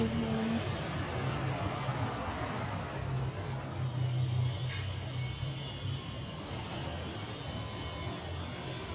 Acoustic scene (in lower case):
residential area